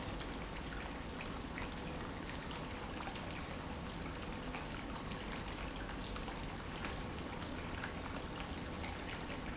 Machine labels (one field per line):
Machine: pump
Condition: normal